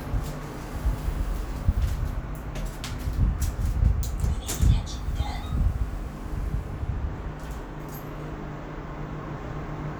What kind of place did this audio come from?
elevator